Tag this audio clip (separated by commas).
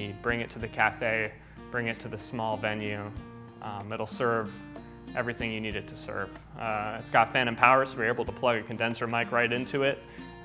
Acoustic guitar, Speech, Plucked string instrument, Music, Musical instrument, Guitar, Strum